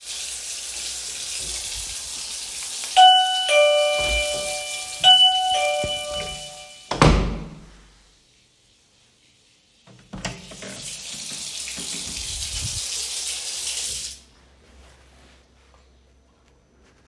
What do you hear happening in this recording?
The phone is worn on the wrist while moving between the bathroom and hallway. Running water from a sink is audible while a door is opened and closed. At the same time the doorbell rings creating overlapping events.